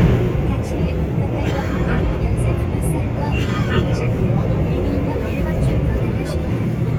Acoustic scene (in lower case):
subway train